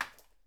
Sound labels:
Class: object falling